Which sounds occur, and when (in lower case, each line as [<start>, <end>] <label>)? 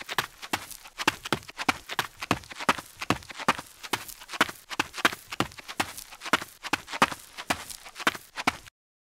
[0.00, 8.68] background noise
[0.07, 0.23] run
[0.23, 0.38] generic impact sounds
[0.39, 0.56] run
[0.58, 0.92] generic impact sounds
[0.96, 1.12] run
[1.10, 1.22] generic impact sounds
[1.23, 1.37] run
[1.37, 1.50] generic impact sounds
[1.57, 1.72] run
[1.75, 1.87] generic impact sounds
[1.86, 2.04] run
[2.07, 2.19] generic impact sounds
[2.16, 2.32] run
[2.34, 2.52] generic impact sounds
[2.45, 2.79] run
[2.79, 2.95] generic impact sounds
[3.00, 3.14] run
[3.17, 3.39] generic impact sounds
[3.45, 3.59] run
[3.60, 3.78] generic impact sounds
[3.80, 3.94] run
[4.02, 4.22] generic impact sounds
[4.27, 4.49] run
[4.49, 4.67] generic impact sounds
[4.69, 4.83] run
[4.95, 5.09] run
[5.14, 5.27] generic impact sounds
[5.28, 5.42] run
[5.68, 5.82] run
[5.89, 6.13] generic impact sounds
[6.29, 6.45] run
[6.42, 6.55] generic impact sounds
[6.60, 6.74] run
[6.77, 6.91] generic impact sounds
[6.91, 7.05] run
[7.14, 7.36] generic impact sounds
[7.34, 7.54] run
[7.53, 7.97] generic impact sounds
[7.95, 8.11] run
[8.11, 8.26] generic impact sounds
[8.35, 8.51] run
[8.53, 8.67] generic impact sounds